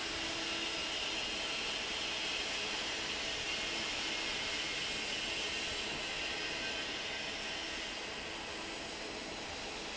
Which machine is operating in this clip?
fan